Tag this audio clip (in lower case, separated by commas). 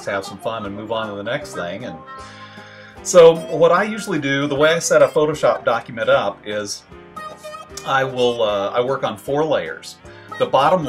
music, speech